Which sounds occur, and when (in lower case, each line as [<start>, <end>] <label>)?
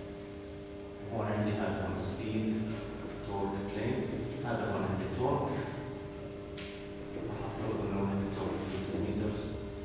[0.00, 9.84] mechanisms
[1.06, 2.77] man speaking
[3.17, 5.76] man speaking
[6.54, 6.68] tick
[7.20, 9.64] man speaking